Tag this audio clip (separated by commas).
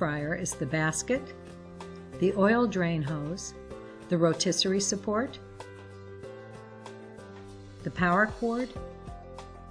Speech, Music